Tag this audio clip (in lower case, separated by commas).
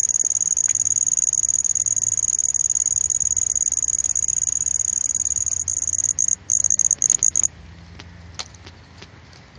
cricket chirping